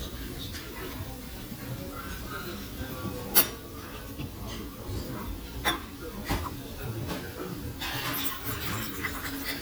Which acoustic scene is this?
restaurant